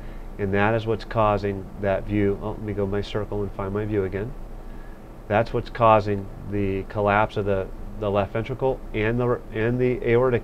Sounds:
Speech

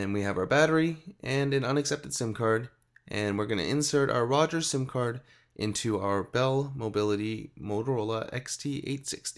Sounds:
Speech

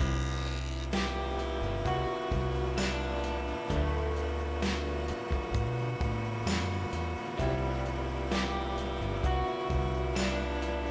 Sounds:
planing timber

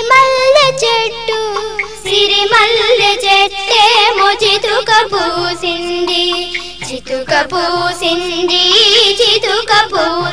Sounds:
Music

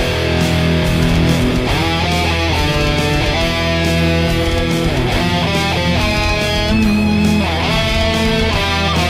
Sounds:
Music, Plucked string instrument, Guitar, playing electric guitar, Electric guitar, Musical instrument

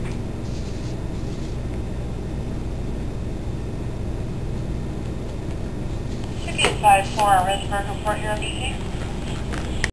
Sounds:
Speech

